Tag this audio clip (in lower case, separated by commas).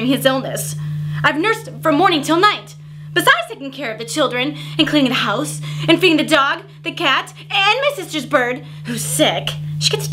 speech, monologue